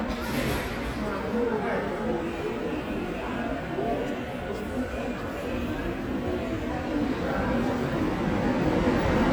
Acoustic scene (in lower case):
subway station